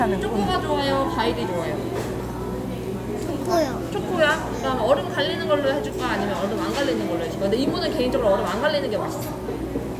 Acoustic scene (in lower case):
cafe